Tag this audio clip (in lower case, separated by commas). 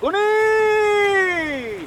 human voice, shout, yell